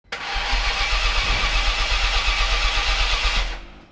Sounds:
motor vehicle (road), engine, car, vehicle

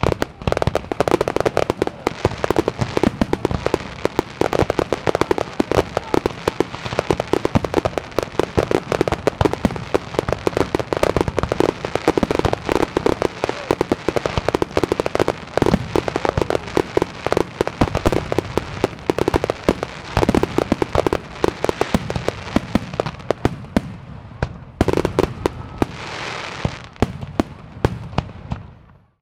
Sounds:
explosion, fireworks

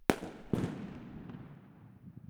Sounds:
explosion, fireworks

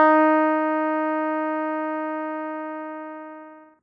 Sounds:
music, keyboard (musical), musical instrument

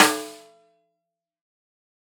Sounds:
drum, musical instrument, snare drum, percussion, music

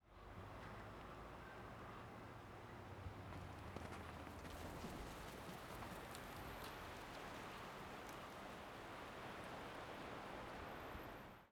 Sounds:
animal, wild animals, bird, crow

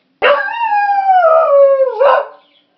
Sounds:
pets, dog, animal

